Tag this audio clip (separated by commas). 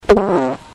Fart